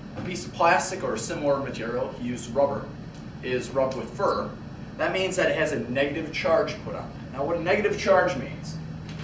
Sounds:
speech

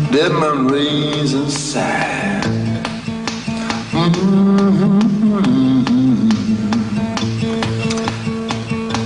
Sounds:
music

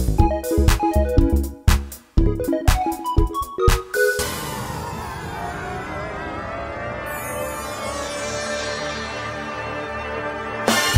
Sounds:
music

